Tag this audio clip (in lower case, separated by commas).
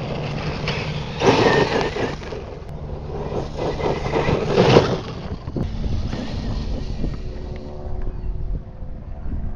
outside, rural or natural, car